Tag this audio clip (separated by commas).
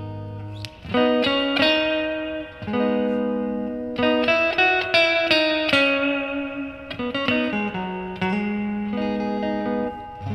Plucked string instrument, Musical instrument, Music